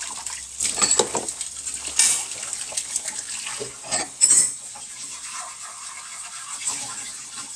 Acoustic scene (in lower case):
kitchen